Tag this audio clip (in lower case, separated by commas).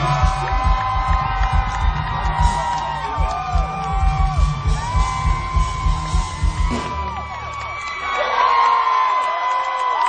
speech, music, outside, urban or man-made